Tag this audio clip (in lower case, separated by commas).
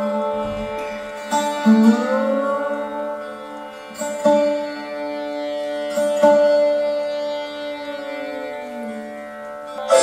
sitar, carnatic music, music, musical instrument, classical music, plucked string instrument